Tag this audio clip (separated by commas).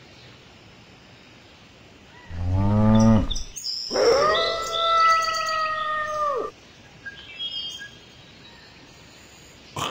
Bird vocalization, outside, rural or natural